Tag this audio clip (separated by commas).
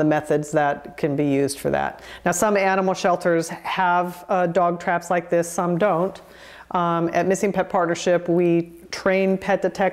Speech